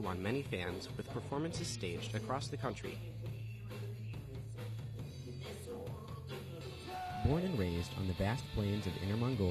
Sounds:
Speech, Music, Progressive rock

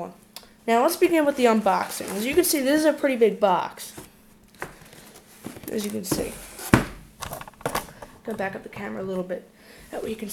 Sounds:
Speech

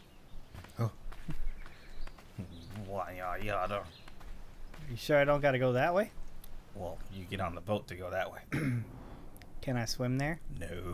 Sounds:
Speech

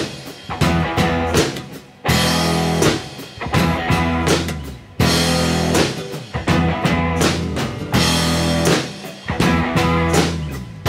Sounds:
Music, Tender music

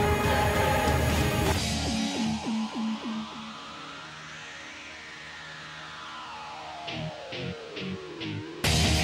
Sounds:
Music

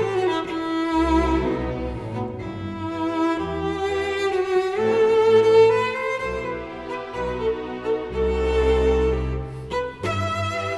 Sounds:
Cello, Music

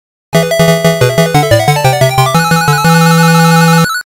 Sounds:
Music

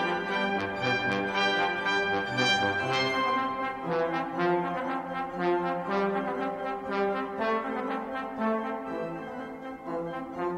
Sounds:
Trumpet, Trombone, playing trombone, Brass instrument

